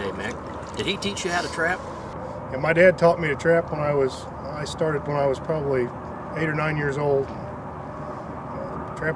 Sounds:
outside, rural or natural, Speech

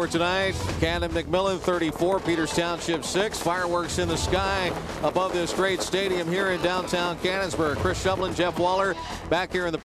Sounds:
Speech, Music

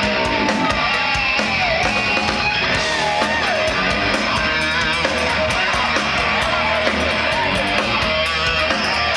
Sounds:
Music, Speech

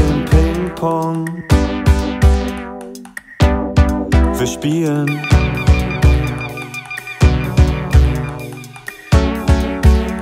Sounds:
Music

